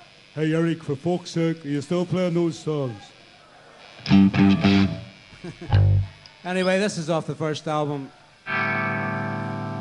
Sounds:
Music, Speech, Wind noise (microphone)

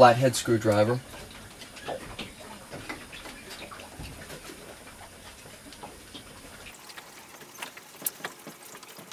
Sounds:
Speech

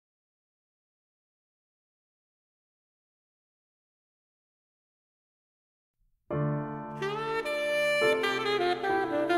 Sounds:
Saxophone, Music

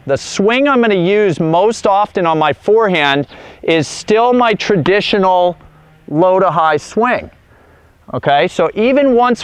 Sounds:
Speech

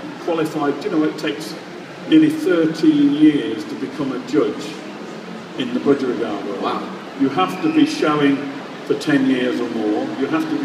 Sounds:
inside a large room or hall, Speech

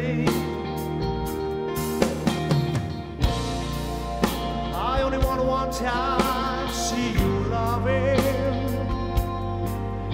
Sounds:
Music

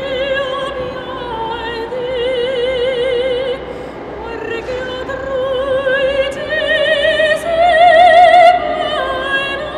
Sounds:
Music, Opera

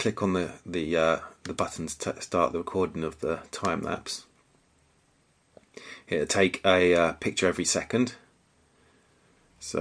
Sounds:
Speech

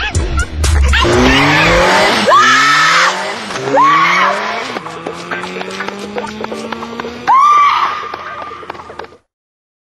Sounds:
Yip, Music

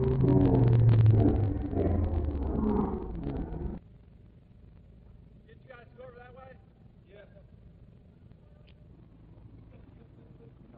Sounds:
Speech

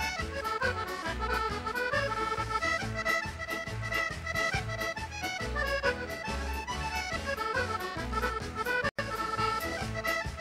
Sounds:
Accordion, Music

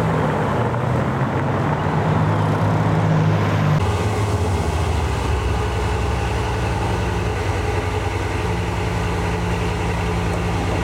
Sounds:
Vehicle, outside, urban or man-made

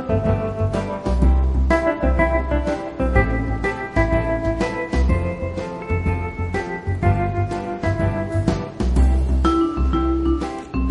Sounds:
Music

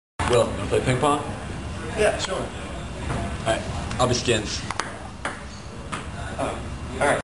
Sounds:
Speech

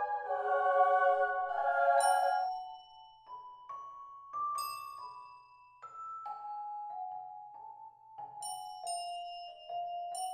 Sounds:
xylophone, Chime, Glockenspiel, Mallet percussion

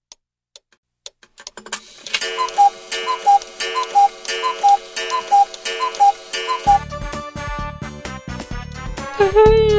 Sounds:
Music

